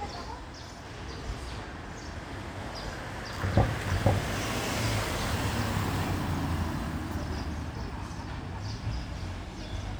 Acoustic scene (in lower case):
residential area